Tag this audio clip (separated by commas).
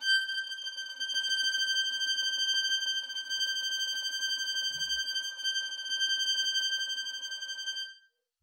Music, Musical instrument, Bowed string instrument